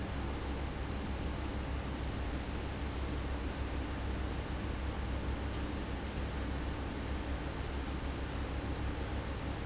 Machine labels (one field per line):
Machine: fan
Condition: abnormal